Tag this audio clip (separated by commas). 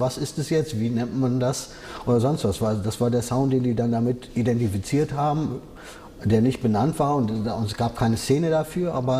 Speech